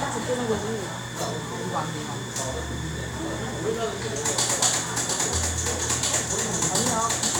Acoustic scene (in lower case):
cafe